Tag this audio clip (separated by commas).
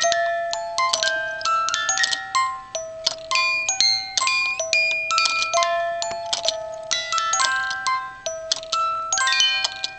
Music